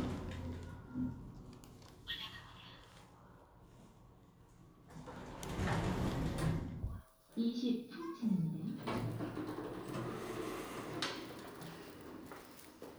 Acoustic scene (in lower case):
elevator